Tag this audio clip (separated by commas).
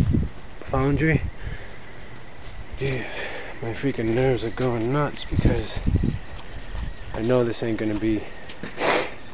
Speech, outside, rural or natural